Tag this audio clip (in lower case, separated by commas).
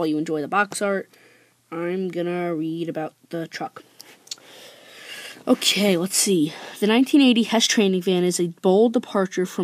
speech